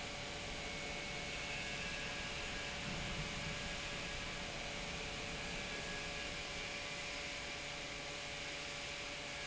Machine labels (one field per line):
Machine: pump